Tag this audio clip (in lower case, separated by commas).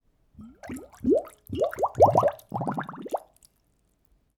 liquid, water